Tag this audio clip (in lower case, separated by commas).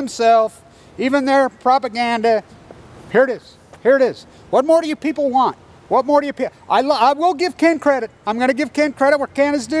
speech